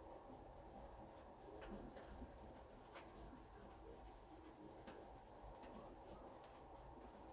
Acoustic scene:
kitchen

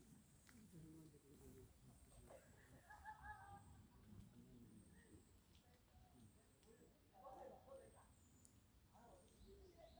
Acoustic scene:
park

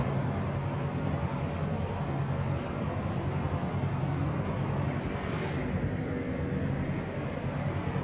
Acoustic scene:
street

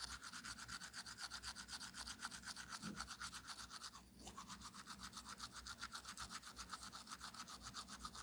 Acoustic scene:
restroom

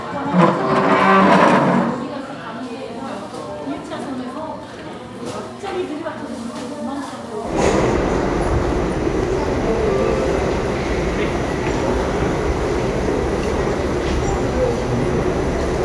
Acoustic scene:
crowded indoor space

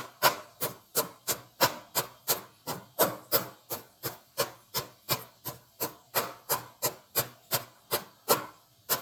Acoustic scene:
kitchen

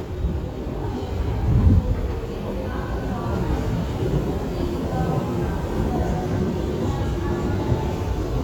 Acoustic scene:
subway station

